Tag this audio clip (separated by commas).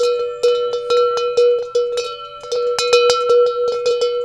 Bell